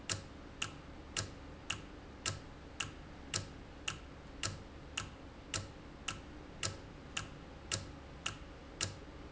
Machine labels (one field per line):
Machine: valve